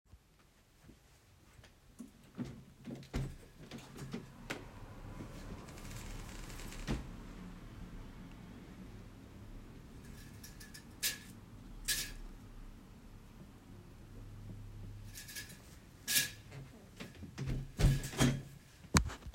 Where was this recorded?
bedroom